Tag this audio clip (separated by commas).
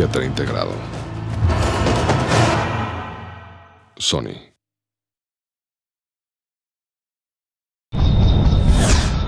Speech, Music